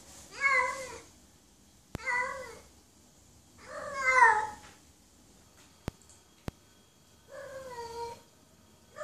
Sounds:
cat caterwauling

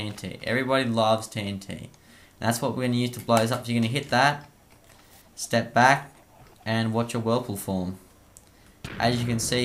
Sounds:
Speech, pop

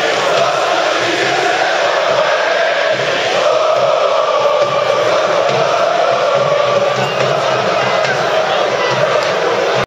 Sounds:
Music, Choir

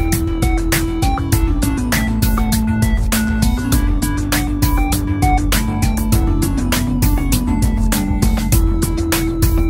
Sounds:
Music

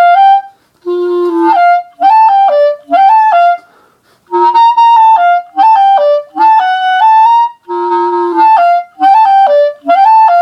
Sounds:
Clarinet

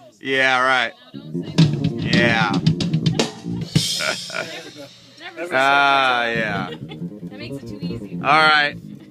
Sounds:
Percussion, Rimshot, Drum, Bass drum, Snare drum, Drum kit

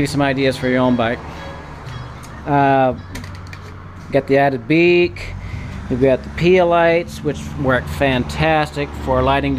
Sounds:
Motor vehicle (road), Vehicle, Speech, Music

